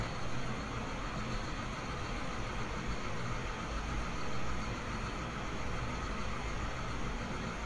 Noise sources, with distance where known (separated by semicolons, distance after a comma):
large-sounding engine